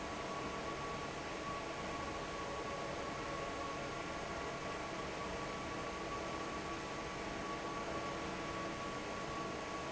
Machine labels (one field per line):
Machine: fan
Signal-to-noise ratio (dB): 0 dB